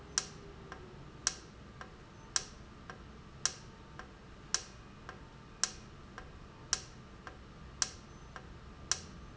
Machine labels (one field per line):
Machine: valve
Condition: normal